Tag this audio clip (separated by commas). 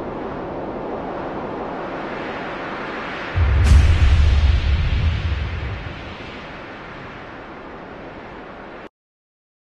Thunder